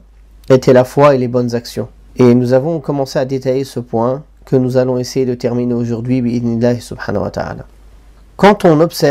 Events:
[0.00, 9.10] background noise
[0.48, 1.84] male speech
[2.09, 4.21] male speech
[4.48, 7.54] male speech
[8.37, 9.10] male speech

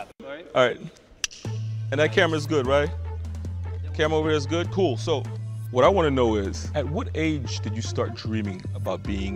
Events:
[0.00, 0.07] music
[0.16, 9.35] music
[0.19, 0.91] male speech
[1.40, 2.88] male speech
[3.92, 5.18] male speech
[5.62, 9.35] male speech

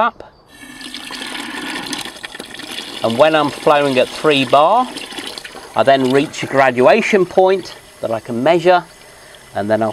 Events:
[0.00, 0.29] man speaking
[0.00, 9.92] background noise
[0.44, 7.76] dribble
[2.98, 3.50] man speaking
[3.63, 4.11] man speaking
[4.24, 4.87] man speaking
[5.73, 7.72] man speaking
[7.99, 8.83] man speaking
[9.53, 9.92] man speaking

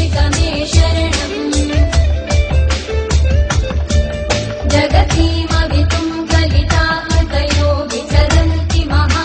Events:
[0.00, 2.01] female singing
[0.00, 9.24] music
[4.63, 9.24] female singing

